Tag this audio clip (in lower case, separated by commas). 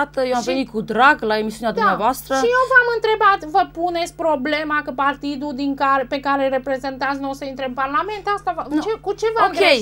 speech